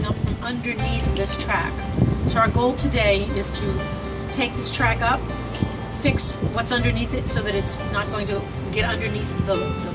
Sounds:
speech
music

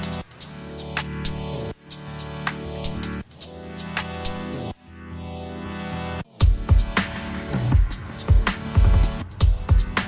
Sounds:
music

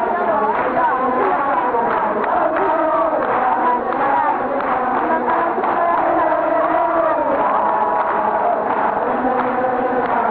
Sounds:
inside a large room or hall

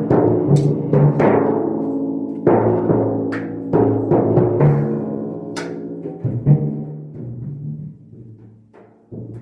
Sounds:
playing tympani

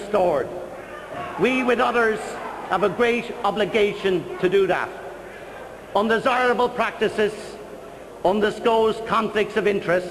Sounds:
man speaking
narration
speech

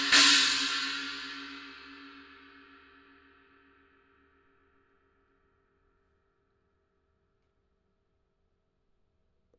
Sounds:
hi-hat
music
musical instrument

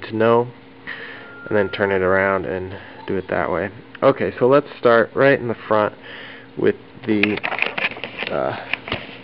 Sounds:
speech

